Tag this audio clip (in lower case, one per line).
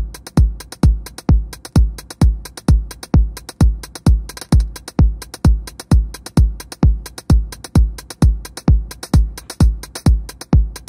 techno
music